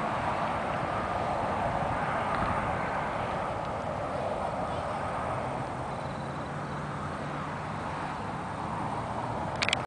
Traffic flowing on a nearby road and some crickets chirping in the background